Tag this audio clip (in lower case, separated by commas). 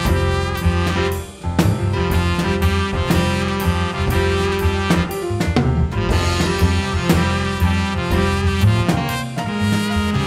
music, jazz